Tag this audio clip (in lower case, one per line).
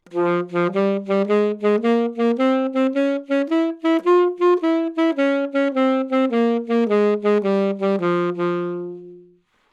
music
musical instrument
woodwind instrument